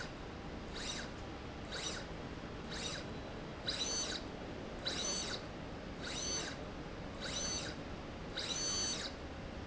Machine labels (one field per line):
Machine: slide rail